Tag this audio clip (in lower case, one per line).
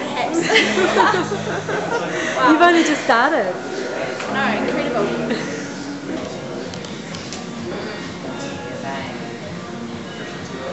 speech
music